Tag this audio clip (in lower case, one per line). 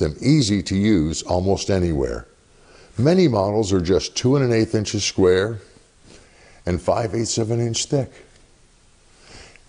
speech